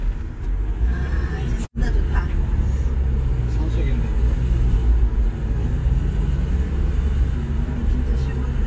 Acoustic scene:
car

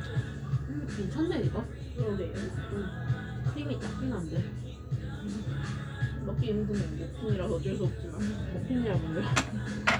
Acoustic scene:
cafe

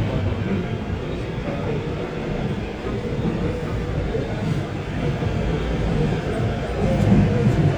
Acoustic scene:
subway train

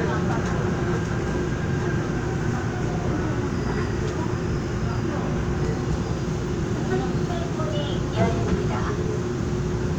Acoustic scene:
subway train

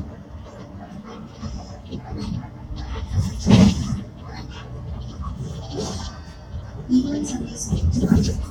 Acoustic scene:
bus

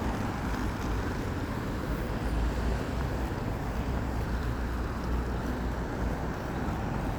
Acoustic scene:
street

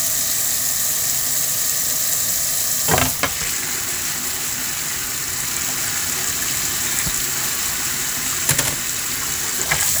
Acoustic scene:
kitchen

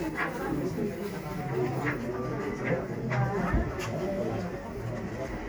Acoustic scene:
crowded indoor space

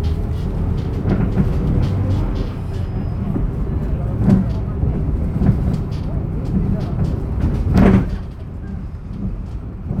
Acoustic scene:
bus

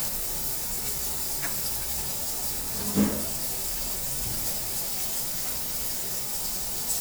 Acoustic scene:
restaurant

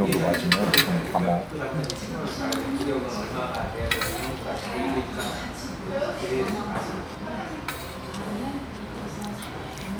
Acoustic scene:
crowded indoor space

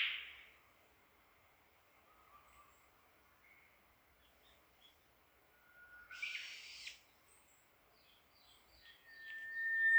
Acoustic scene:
park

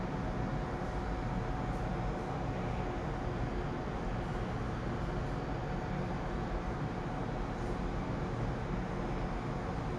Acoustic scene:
elevator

